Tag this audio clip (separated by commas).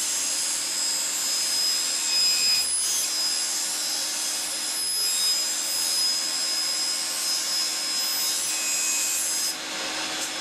inside a large room or hall